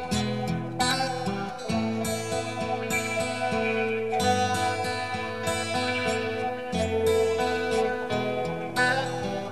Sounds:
Music

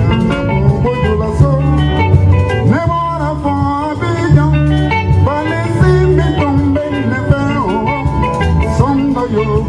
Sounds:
Pop music, Music

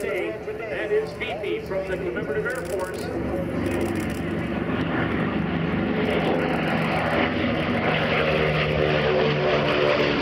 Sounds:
airplane flyby

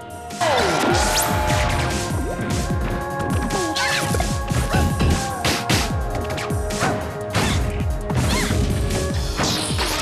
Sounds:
Music

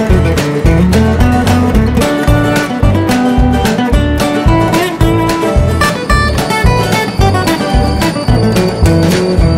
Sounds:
Music

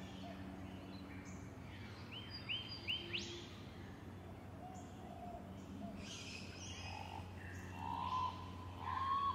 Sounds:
Caw

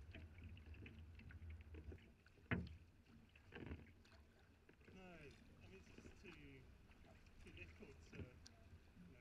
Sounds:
Boat, kayak

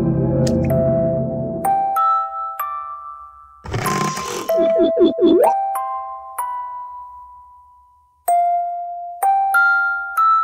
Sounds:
inside a small room, Music

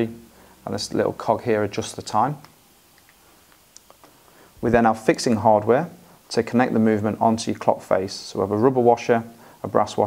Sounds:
Speech

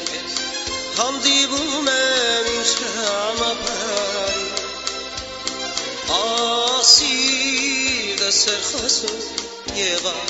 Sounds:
Music

